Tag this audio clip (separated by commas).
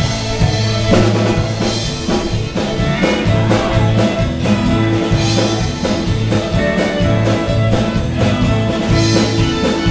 fiddle, Music, Musical instrument